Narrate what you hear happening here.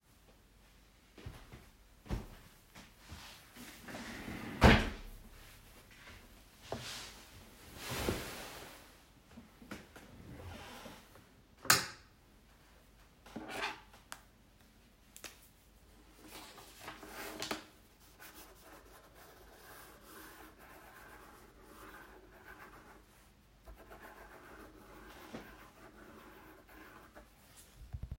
I walked toward my desk then pulled back the chair, sat on it and started to write sth on paper.